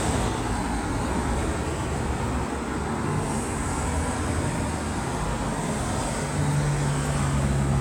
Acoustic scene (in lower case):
street